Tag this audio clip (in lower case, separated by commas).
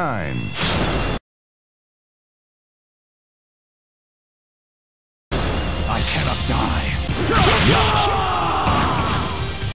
speech, male speech, music